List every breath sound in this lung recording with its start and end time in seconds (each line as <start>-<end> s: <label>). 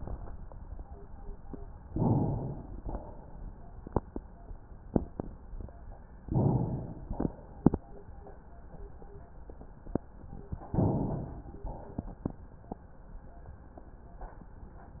1.88-2.79 s: inhalation
2.79-3.78 s: exhalation
6.17-7.15 s: inhalation
7.19-7.84 s: exhalation
10.76-11.67 s: inhalation
11.67-12.31 s: exhalation